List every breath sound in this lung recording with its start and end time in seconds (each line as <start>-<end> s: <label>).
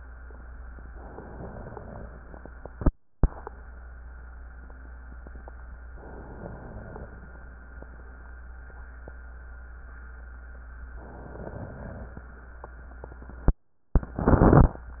0.96-2.12 s: inhalation
0.98-2.10 s: crackles
6.01-7.09 s: inhalation
11.05-12.21 s: inhalation